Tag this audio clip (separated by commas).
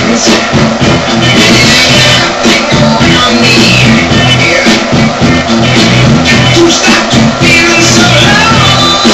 Funk, Music